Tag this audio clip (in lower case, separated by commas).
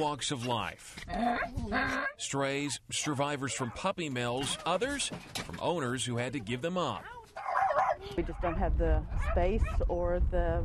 animal, pets, dog